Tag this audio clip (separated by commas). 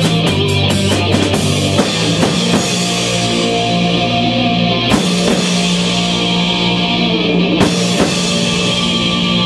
Rock music, Music